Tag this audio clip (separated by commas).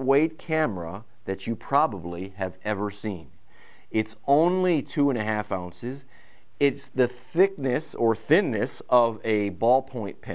Speech